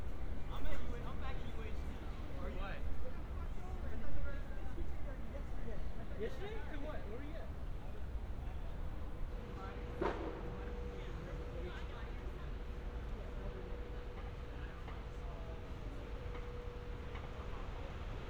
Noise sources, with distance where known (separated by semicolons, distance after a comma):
unidentified human voice